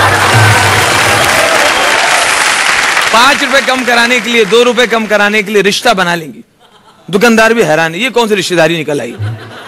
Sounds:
Laughter, Speech

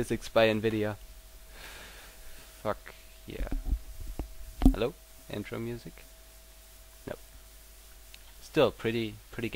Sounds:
Speech

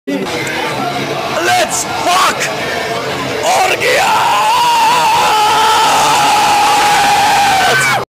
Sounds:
Speech

